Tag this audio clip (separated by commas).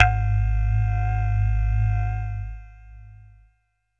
Musical instrument, Music, Keyboard (musical)